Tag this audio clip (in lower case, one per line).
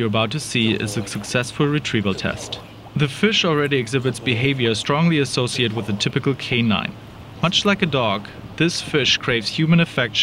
speech